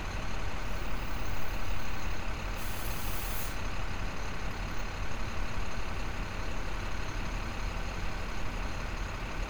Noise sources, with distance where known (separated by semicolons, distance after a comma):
large-sounding engine, near